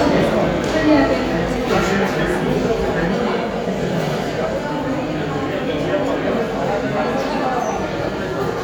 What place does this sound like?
crowded indoor space